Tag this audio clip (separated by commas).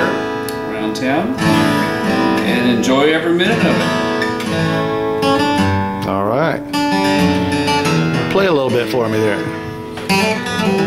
Speech, Music